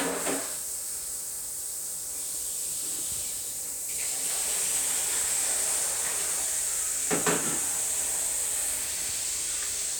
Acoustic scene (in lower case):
restroom